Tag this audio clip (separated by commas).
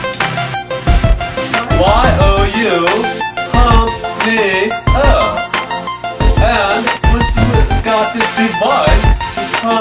Speech, Music